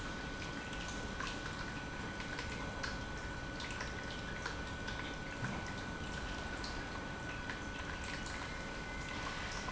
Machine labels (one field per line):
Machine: pump